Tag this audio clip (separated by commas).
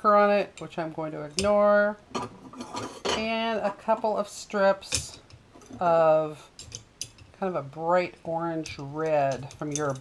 Speech